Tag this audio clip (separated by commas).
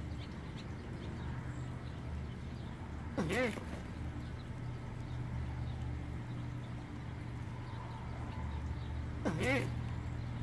duck quacking